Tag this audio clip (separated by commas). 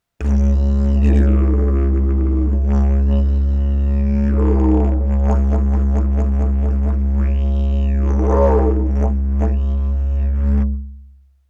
Musical instrument, Music